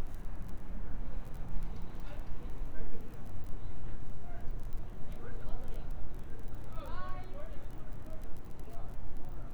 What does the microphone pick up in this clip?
person or small group talking